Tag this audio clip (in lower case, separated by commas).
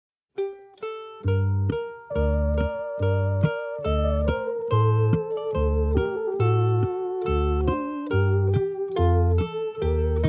mandolin, music